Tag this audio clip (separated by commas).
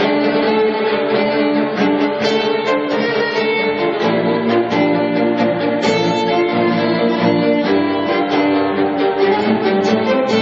Orchestra, Music